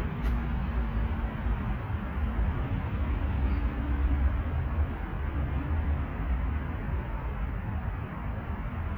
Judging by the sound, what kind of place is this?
residential area